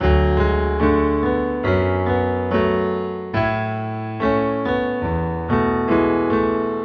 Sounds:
music, musical instrument, piano, keyboard (musical)

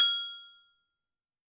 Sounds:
glass

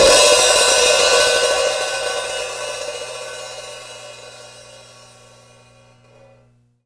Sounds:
hi-hat, musical instrument, percussion, music, cymbal

